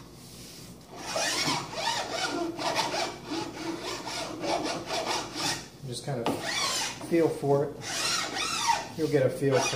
Filing noise and a man talks